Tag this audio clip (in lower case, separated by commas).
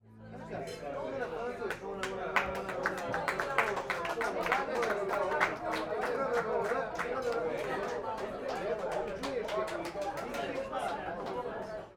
applause, human group actions